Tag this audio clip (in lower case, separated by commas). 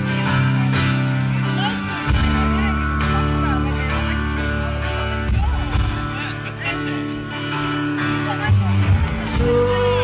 music, speech